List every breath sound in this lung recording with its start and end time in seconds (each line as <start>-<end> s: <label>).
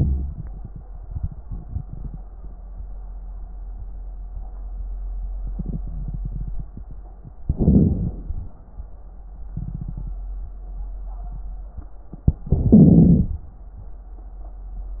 7.47-8.25 s: inhalation
7.47-8.25 s: crackles
12.49-13.27 s: inhalation